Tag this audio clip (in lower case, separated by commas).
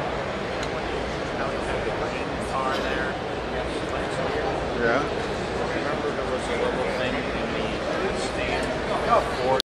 speech